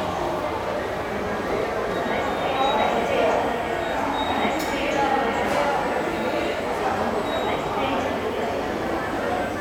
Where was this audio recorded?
in a subway station